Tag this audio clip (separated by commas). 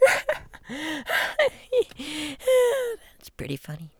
Human voice, Laughter